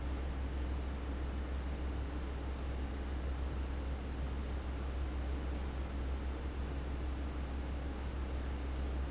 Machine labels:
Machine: fan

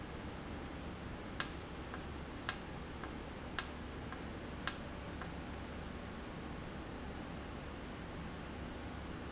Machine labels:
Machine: valve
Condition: normal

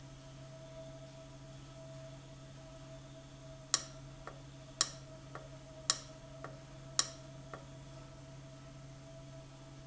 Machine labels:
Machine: valve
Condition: abnormal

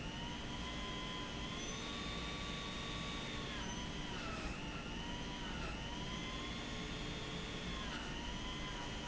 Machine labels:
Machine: pump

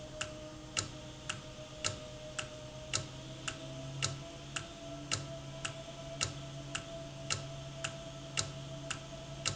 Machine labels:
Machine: valve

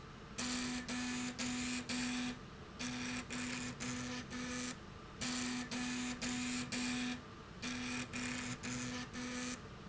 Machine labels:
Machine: slide rail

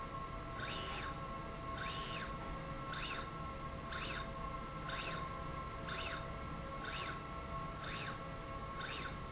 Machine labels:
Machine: slide rail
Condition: normal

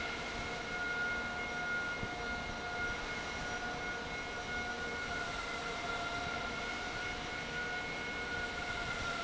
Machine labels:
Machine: fan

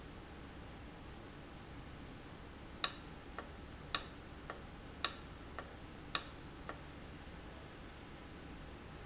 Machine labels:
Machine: valve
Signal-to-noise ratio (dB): 6 dB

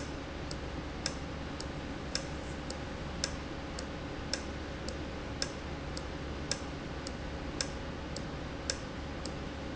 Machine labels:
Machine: valve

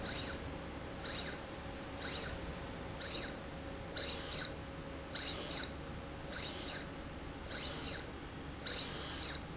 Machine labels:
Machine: slide rail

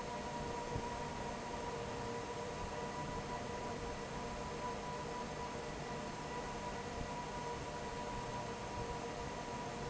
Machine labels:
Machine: fan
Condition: normal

